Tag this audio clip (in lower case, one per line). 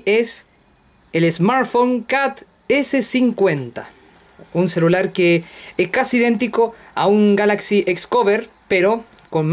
speech